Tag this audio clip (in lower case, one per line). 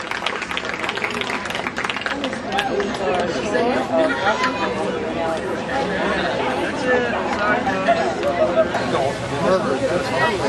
chatter
speech